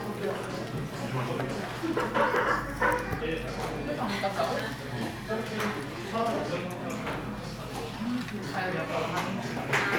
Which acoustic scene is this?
crowded indoor space